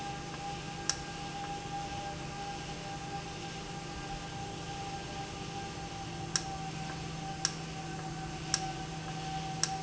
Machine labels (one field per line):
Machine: valve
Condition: normal